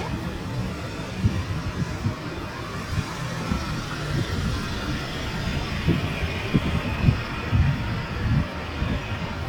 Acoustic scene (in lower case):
street